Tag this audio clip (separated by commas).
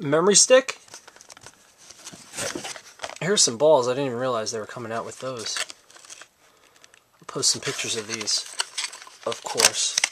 Speech